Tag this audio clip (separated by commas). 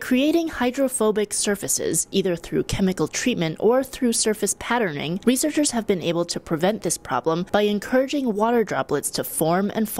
Speech